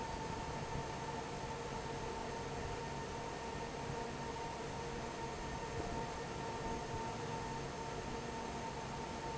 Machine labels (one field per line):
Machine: fan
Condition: normal